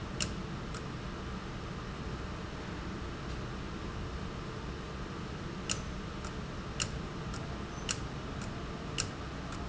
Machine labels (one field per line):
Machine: valve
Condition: abnormal